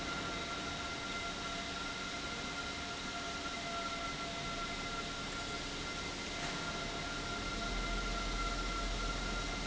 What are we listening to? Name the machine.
pump